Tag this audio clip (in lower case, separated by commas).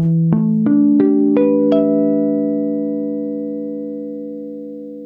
guitar, music, plucked string instrument, musical instrument